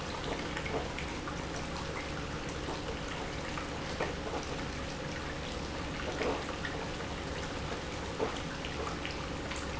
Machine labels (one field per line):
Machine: pump